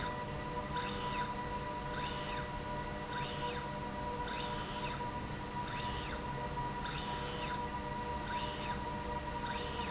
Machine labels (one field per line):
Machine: slide rail